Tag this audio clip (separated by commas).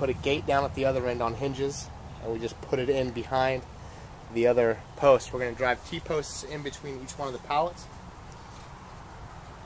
Speech